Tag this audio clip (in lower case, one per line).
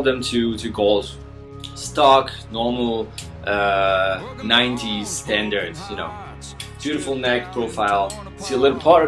music
speech